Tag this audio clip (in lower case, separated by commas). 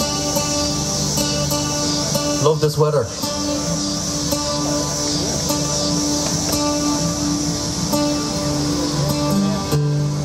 speech, music